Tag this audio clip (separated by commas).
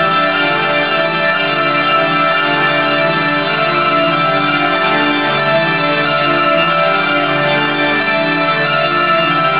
Techno, Music, Electronic music